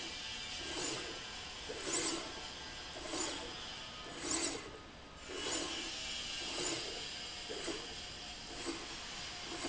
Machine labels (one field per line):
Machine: slide rail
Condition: abnormal